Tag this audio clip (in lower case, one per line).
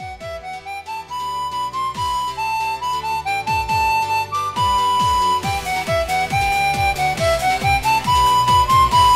harmonica
music